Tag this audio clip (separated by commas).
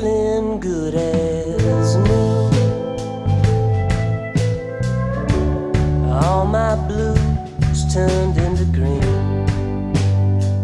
Music